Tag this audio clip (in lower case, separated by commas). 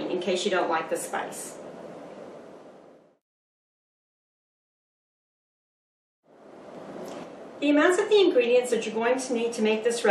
speech